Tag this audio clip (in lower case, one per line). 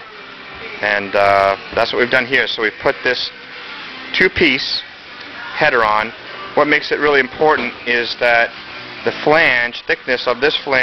speech
music